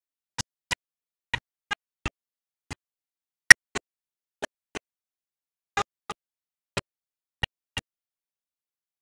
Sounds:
soul music, music

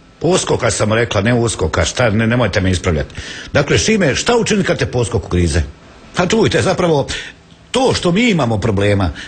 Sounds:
speech

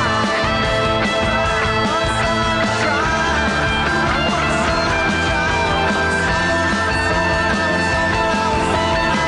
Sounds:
singing, yell

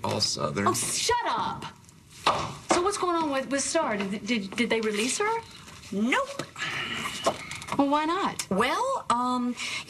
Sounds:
speech

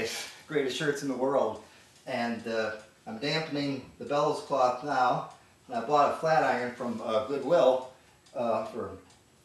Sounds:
speech

